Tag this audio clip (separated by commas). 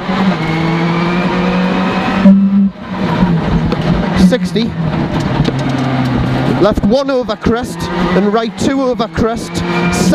Vehicle, Motor vehicle (road), Car passing by, Skidding, Speech, Car